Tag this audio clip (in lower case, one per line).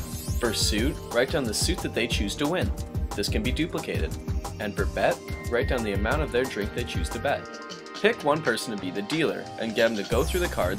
music
speech